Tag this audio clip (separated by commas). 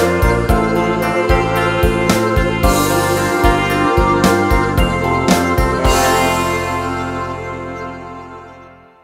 Music